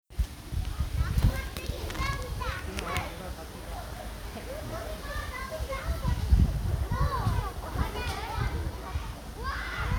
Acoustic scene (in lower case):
park